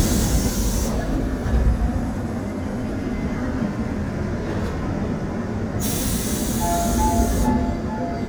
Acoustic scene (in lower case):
subway train